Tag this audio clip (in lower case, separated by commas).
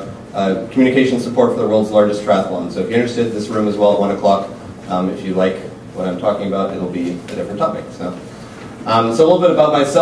speech